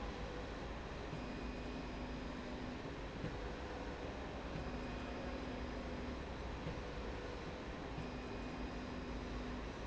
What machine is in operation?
slide rail